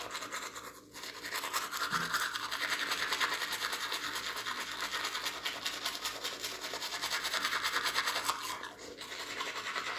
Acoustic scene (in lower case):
restroom